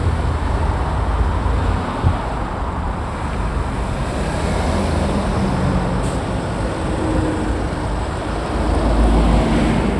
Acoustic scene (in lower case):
street